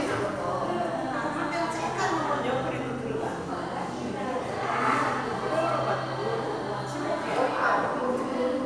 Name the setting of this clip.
crowded indoor space